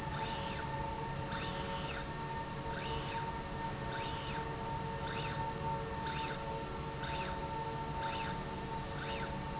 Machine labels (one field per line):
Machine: slide rail